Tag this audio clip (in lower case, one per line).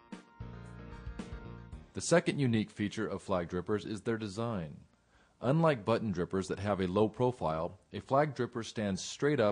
speech